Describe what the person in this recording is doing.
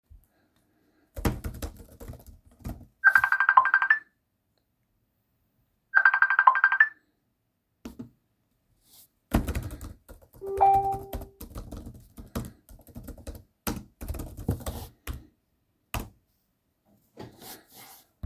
I was working on my project on my laptop. Then i heard a call from someone, but I was busy to answer so I hung up, received a notification and continued working.